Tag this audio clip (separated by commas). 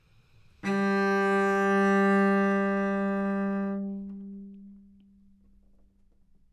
Musical instrument, Bowed string instrument, Music